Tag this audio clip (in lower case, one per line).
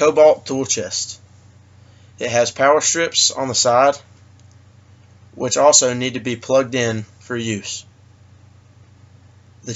speech